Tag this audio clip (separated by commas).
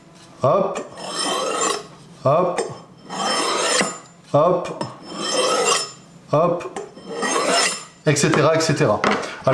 sharpen knife